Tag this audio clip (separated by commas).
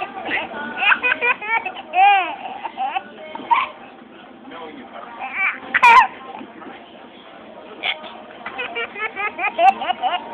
Music, Laughter, Speech